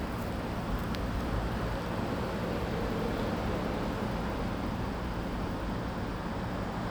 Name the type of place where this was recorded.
residential area